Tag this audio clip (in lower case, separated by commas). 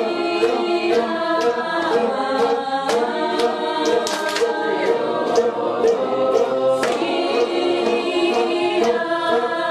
choir, music, singing